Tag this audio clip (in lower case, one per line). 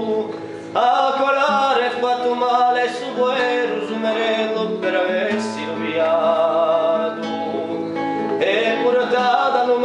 music